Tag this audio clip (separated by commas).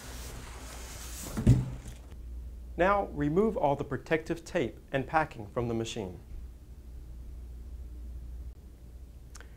Speech